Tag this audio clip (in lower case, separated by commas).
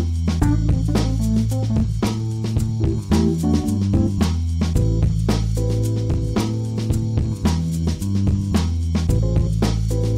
music, jazz